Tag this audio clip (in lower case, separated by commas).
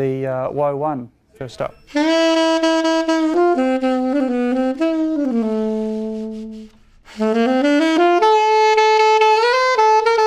speech, music